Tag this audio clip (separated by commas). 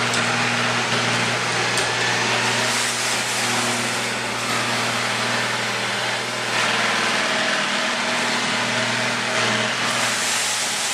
Vacuum cleaner